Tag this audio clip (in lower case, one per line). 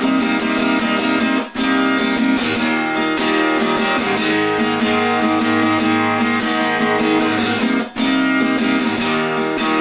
music